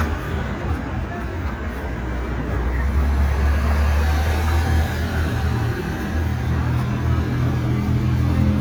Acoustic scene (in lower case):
street